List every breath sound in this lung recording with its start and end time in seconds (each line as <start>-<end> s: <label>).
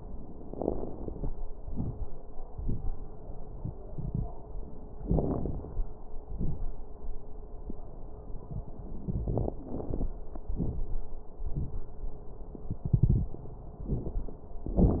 0.45-1.32 s: inhalation
0.45-1.32 s: crackles
1.64-2.02 s: exhalation
1.64-2.02 s: crackles
5.03-5.81 s: inhalation
5.03-5.81 s: crackles
6.29-6.77 s: exhalation
6.29-6.77 s: crackles
9.07-10.12 s: inhalation
9.07-10.12 s: crackles
10.54-11.06 s: exhalation
10.54-11.06 s: crackles